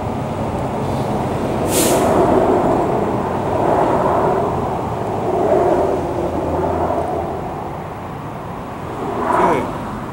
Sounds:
speech, vehicle, outside, rural or natural

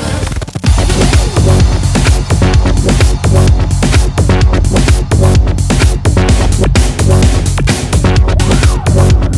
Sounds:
electronic dance music, electronica, electronic music, music, trance music, house music

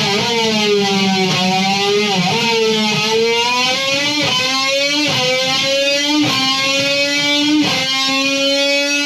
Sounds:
musical instrument, strum, guitar, electric guitar, plucked string instrument, playing electric guitar, music

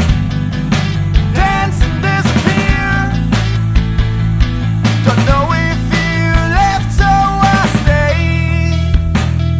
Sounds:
dance music, music

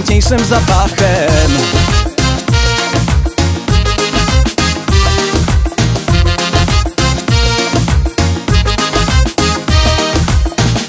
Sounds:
music

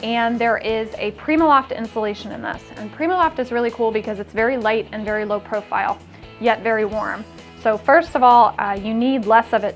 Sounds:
speech, music

